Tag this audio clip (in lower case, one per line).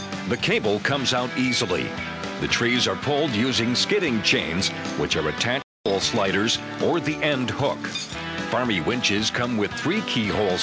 music
speech